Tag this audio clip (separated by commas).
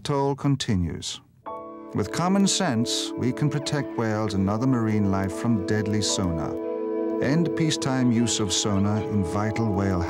Speech, Music